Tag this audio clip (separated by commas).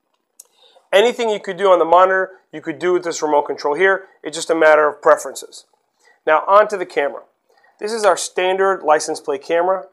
Speech